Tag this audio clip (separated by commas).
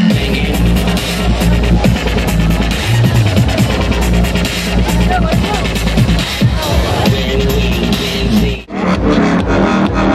Music, Exciting music